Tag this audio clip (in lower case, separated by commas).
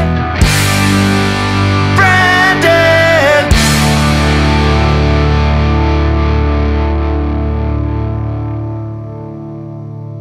music